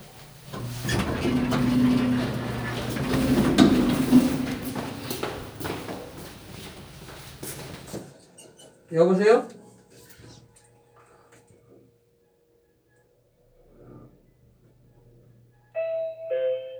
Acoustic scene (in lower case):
elevator